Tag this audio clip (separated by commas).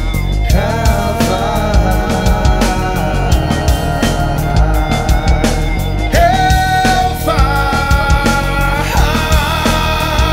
Ska, Psychedelic rock, Music